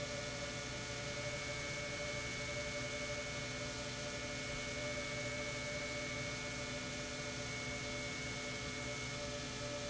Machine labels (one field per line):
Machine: pump